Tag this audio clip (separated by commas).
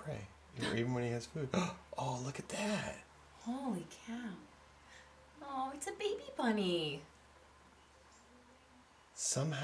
Speech